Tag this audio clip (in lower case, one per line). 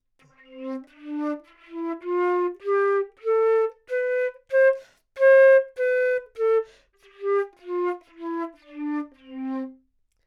musical instrument
music
wind instrument